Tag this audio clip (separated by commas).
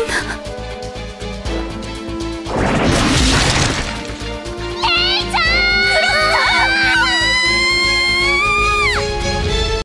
Music, Speech